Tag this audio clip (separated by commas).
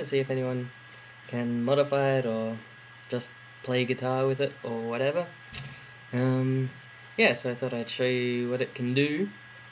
Speech